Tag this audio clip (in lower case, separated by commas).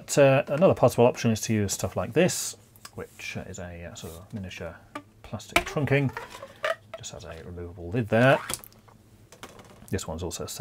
speech